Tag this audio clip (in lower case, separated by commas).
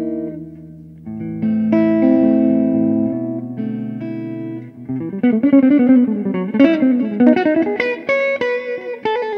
plucked string instrument, strum, guitar, music, acoustic guitar, musical instrument